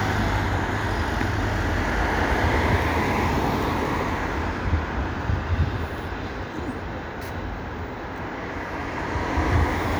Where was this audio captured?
on a street